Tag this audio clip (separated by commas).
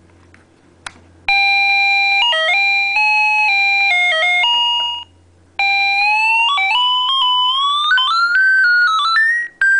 Video game music